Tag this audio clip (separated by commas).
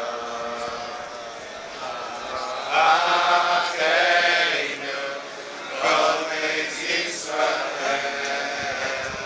Male singing, Choir